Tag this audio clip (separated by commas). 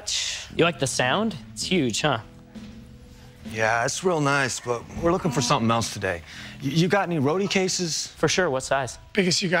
Speech, Music